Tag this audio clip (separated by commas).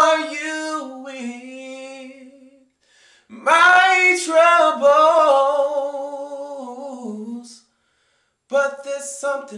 Male singing